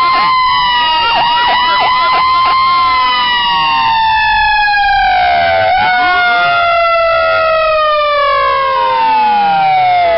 A loud emergency siren is going off